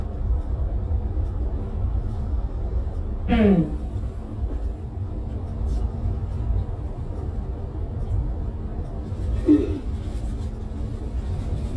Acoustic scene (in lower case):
bus